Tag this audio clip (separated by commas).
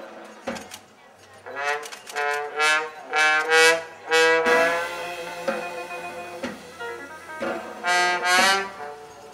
Music